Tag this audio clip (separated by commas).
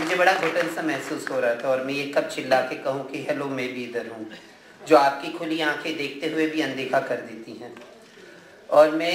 Narration, Speech, man speaking